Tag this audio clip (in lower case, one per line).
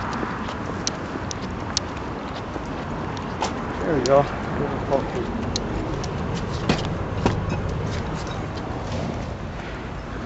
speech